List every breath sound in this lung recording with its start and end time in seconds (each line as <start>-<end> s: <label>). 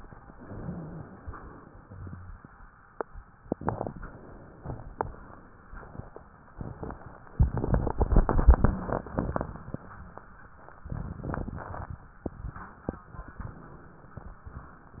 0.24-1.17 s: inhalation
0.38-1.18 s: wheeze
1.17-2.39 s: exhalation
1.81-2.39 s: rhonchi